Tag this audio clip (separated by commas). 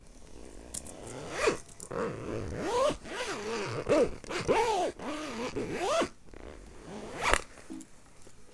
Domestic sounds, Zipper (clothing)